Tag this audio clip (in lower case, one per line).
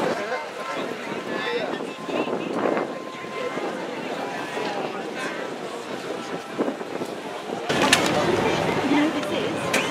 speech